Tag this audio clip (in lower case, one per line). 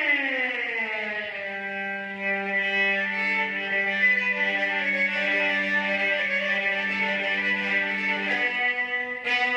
musical instrument
fiddle
music